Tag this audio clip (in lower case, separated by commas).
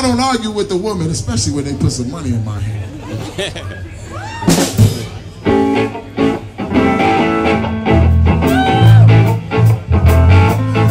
music, pop music, blues, speech